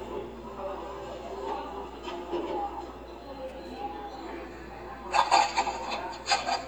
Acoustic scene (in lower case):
cafe